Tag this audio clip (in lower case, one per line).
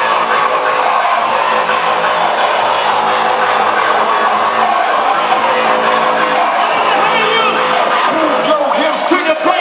speech
music